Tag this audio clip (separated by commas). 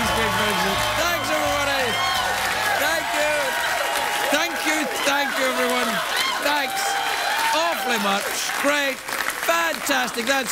Speech